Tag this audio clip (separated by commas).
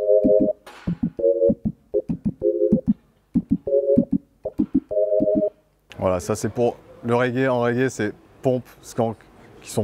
Synthesizer, Speech, Keyboard (musical), Musical instrument, Music